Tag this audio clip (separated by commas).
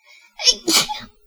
Human voice, Sneeze, Respiratory sounds